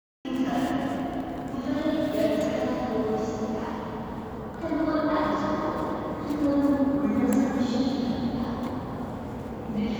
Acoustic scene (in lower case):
subway station